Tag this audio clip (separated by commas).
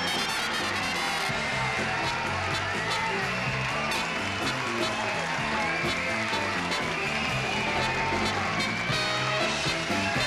Music